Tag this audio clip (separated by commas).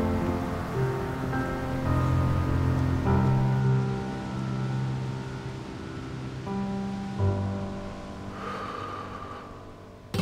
Music